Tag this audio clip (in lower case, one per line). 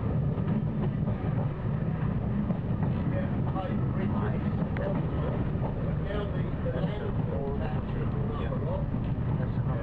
vehicle
speech
train
outside, rural or natural
rail transport